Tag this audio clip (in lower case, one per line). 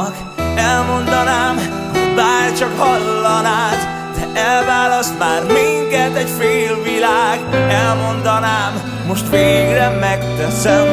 music